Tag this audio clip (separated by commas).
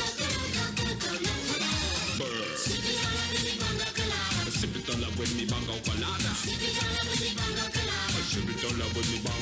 Music